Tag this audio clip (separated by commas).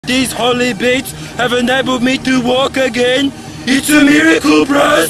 Speech